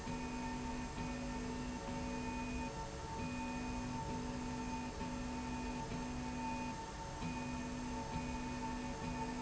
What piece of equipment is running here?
slide rail